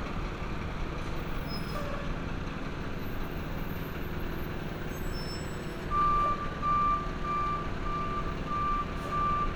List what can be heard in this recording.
reverse beeper